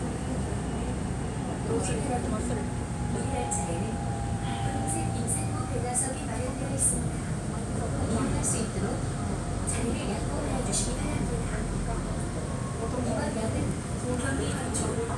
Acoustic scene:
subway train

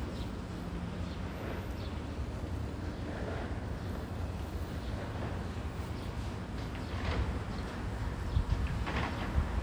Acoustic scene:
residential area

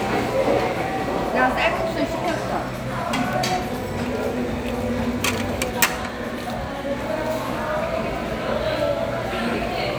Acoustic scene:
restaurant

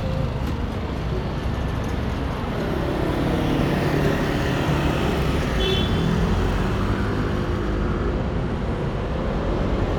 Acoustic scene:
residential area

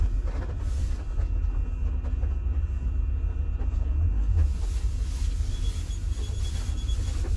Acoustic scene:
car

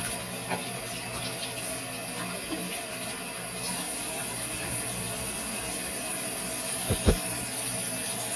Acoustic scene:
restroom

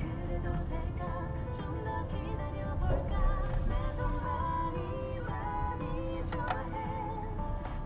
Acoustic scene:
car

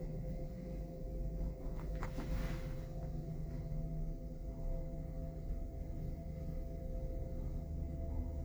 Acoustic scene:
elevator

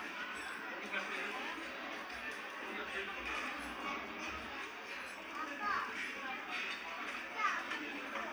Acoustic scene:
restaurant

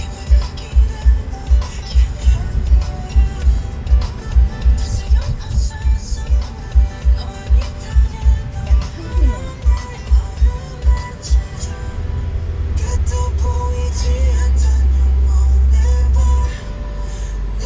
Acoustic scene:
car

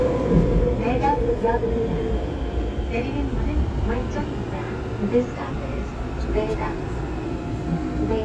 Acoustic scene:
subway train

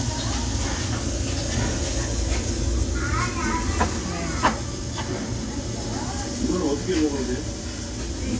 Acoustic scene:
restaurant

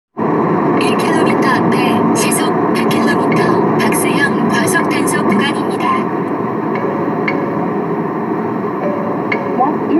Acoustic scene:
car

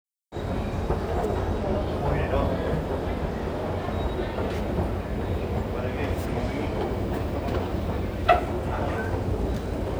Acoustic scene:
subway station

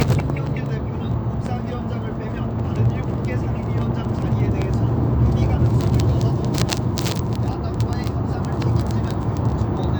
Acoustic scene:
car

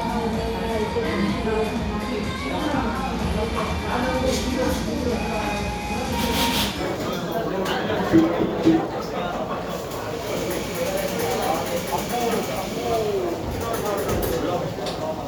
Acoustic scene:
cafe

